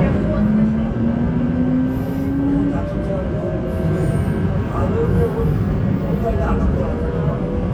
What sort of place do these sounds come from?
subway train